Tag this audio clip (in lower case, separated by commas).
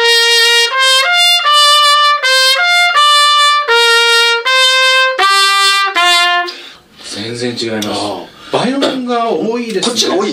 playing cornet